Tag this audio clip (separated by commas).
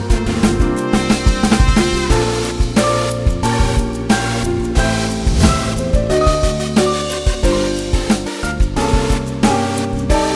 Music